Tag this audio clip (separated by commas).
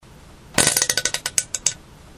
Fart